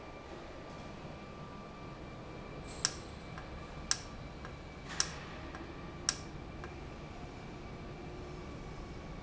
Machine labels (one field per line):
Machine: valve